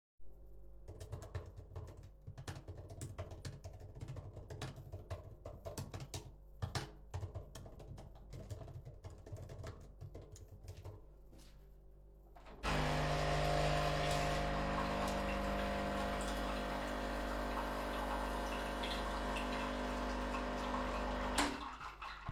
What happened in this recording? I decided to make a cofee during typing an email